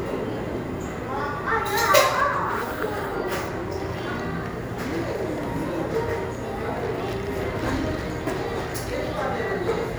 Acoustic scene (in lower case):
cafe